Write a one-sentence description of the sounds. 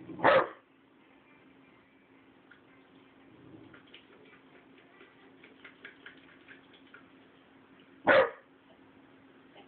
Muffled sound of a dog barking